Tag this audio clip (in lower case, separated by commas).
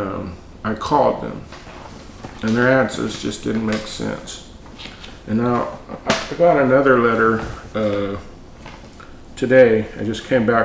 speech, tap